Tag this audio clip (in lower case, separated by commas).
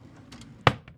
drawer open or close, domestic sounds